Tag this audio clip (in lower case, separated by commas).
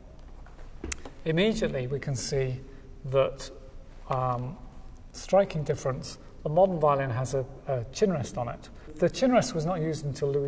speech